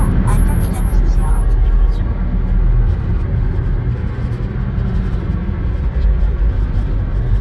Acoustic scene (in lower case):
car